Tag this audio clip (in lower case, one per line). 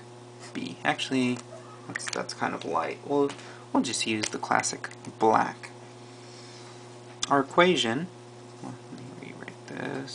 speech